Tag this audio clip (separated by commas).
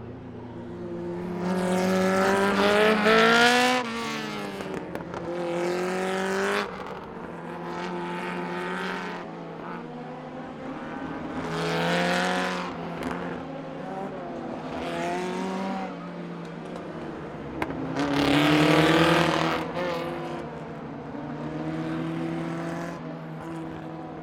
auto racing, Car, Vehicle, Motor vehicle (road), Engine